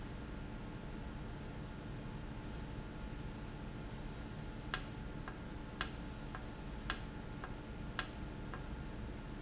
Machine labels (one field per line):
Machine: valve